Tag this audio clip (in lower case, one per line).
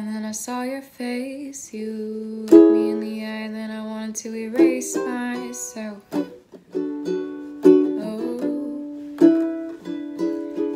playing ukulele